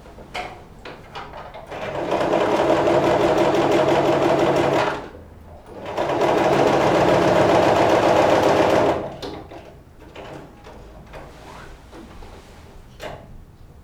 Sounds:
engine, mechanisms

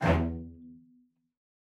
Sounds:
musical instrument, music, bowed string instrument

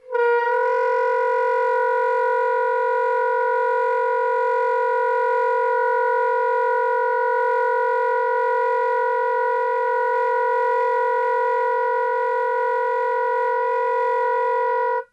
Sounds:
music, woodwind instrument, musical instrument

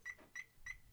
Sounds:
car, alarm, vehicle, motor vehicle (road)

